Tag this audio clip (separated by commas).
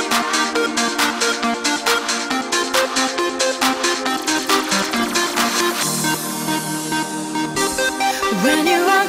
Music, Trance music